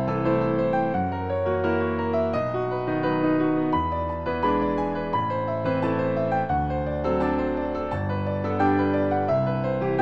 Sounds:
Blues, Music, Rhythm and blues

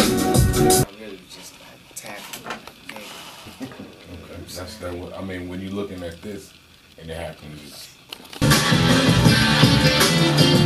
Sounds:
Music, Speech

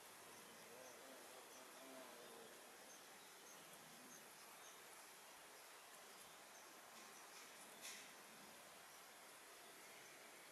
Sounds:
barn swallow calling

